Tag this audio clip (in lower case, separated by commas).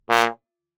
brass instrument, musical instrument, music